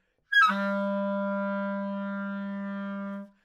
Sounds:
music, musical instrument, woodwind instrument

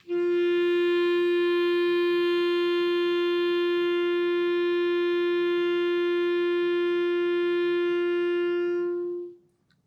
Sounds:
woodwind instrument, musical instrument, music

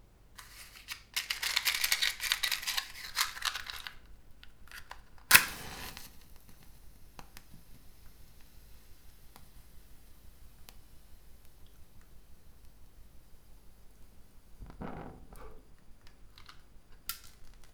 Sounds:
fire

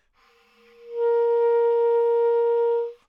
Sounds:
wind instrument, musical instrument, music

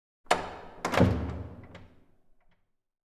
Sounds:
door, slam, home sounds

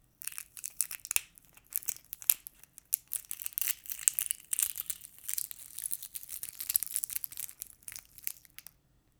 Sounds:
crackle

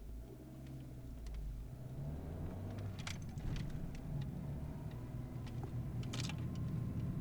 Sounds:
motor vehicle (road), car, engine, vehicle

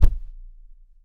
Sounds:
thump

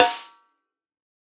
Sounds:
drum, music, snare drum, percussion, musical instrument

